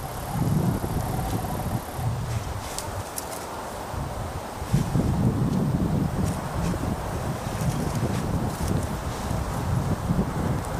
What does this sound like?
Strong wind is blowing, and rustling is present